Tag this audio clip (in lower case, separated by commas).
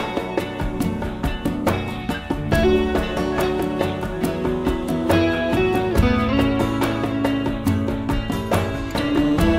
music